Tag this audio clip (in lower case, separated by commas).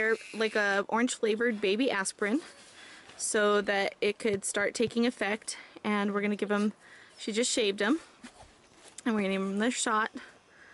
speech